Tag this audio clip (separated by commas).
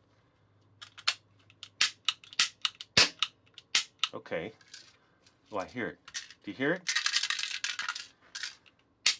cap gun shooting